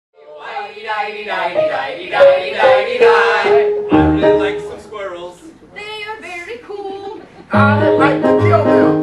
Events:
0.1s-9.0s: music
0.1s-3.7s: male singing
0.1s-9.0s: background noise
0.1s-3.7s: female singing
3.9s-5.4s: male singing
5.3s-5.6s: breathing
5.4s-5.7s: male speech
5.7s-7.2s: female singing
6.6s-7.4s: laughter
7.2s-7.4s: breathing
7.5s-9.0s: male singing

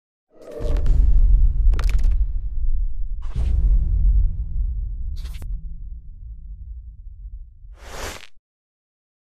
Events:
0.2s-1.1s: sound effect
0.2s-8.3s: rumble
1.6s-2.1s: sound effect
3.2s-3.6s: sound effect
5.1s-5.6s: sound effect
7.7s-8.3s: sound effect

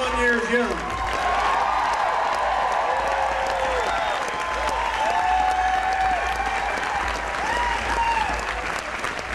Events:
0.0s-9.3s: crowd
0.2s-9.3s: clapping
3.5s-4.2s: whistling
7.4s-8.4s: shout

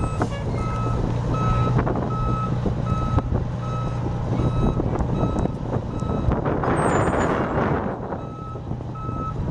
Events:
0.0s-9.5s: truck
0.0s-9.5s: wind noise (microphone)
0.3s-0.4s: car horn
6.3s-6.4s: tick
6.6s-8.1s: bang

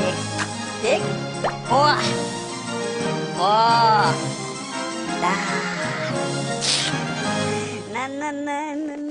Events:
0.0s-9.1s: music
0.3s-0.5s: generic impact sounds
0.8s-1.1s: speech synthesizer
1.4s-1.6s: drip
1.6s-2.3s: speech synthesizer
3.4s-4.1s: speech synthesizer
5.2s-6.2s: speech synthesizer
6.6s-7.0s: speech synthesizer
7.9s-9.1s: synthetic singing

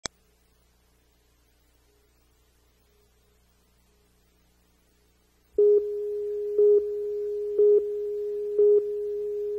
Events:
0.0s-0.1s: tick
0.0s-9.5s: background noise
5.6s-9.5s: chirp tone

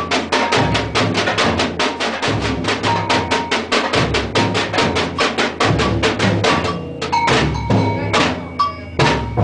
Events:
0.0s-1.0s: cowbell
0.0s-9.4s: music
1.8s-2.1s: cowbell
2.8s-3.7s: cowbell
4.3s-5.5s: cowbell
5.8s-7.0s: cowbell
7.1s-8.1s: cowbell
7.9s-8.1s: human voice
8.3s-8.9s: cowbell
8.3s-9.0s: human voice
9.1s-9.4s: cowbell

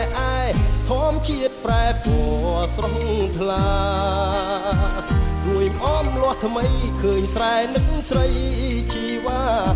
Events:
0.0s-0.6s: male singing
0.0s-9.0s: water
0.0s-9.7s: music
0.8s-9.7s: male singing

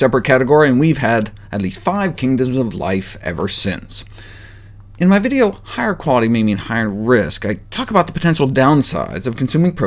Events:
0.0s-1.3s: man speaking
0.0s-9.8s: background noise
1.3s-1.4s: breathing
1.5s-4.0s: man speaking
4.1s-4.8s: breathing
4.9s-7.5s: man speaking
7.7s-9.8s: man speaking

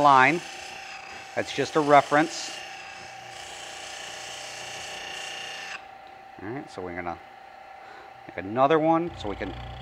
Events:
0.0s-0.4s: man speaking
0.0s-9.8s: mechanisms
1.3s-2.3s: man speaking
6.4s-7.2s: man speaking
7.7s-8.2s: breathing
8.2s-9.5s: man speaking

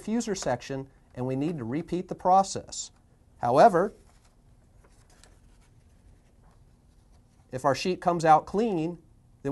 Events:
0.0s-9.5s: background noise
0.0s-0.8s: man speaking
1.1s-2.8s: man speaking
3.3s-3.9s: man speaking
7.5s-8.9s: man speaking

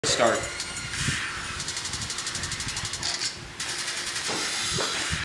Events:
0.1s-0.5s: male speech
0.1s-5.2s: mechanisms
0.6s-0.7s: tick
0.9s-1.3s: scrape
1.6s-3.0s: sound effect
3.0s-3.3s: generic impact sounds
3.6s-4.3s: sound effect
4.3s-4.4s: generic impact sounds
4.8s-4.9s: generic impact sounds

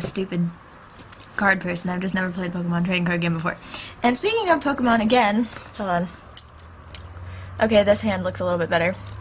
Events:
0.0s-0.5s: woman speaking
0.0s-9.2s: background noise
0.9s-3.5s: woman speaking
3.6s-4.0s: breathing
4.0s-5.5s: woman speaking
5.7s-6.1s: woman speaking
6.2s-6.7s: generic impact sounds
6.8s-7.0s: generic impact sounds
7.2s-7.5s: breathing
7.6s-9.2s: woman speaking

